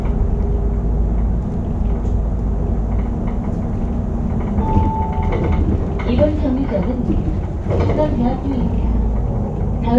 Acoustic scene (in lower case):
bus